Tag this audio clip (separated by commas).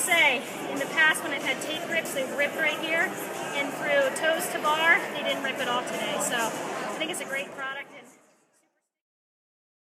Music, Speech